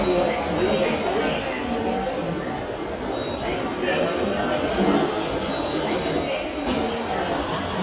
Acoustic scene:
subway station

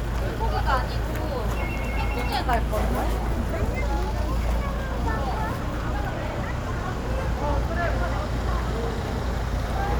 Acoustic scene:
residential area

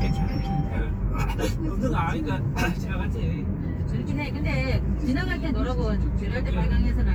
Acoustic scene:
car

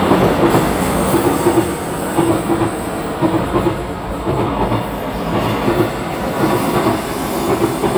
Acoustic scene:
subway station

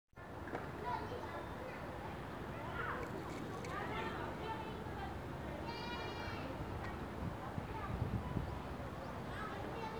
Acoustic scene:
residential area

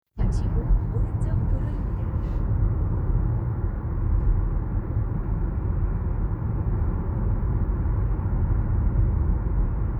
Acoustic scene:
car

